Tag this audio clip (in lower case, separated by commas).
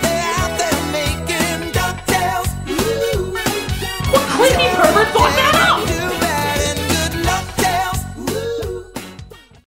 speech, music